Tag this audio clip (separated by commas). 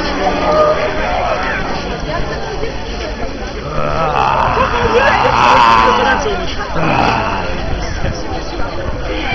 Speech, Walk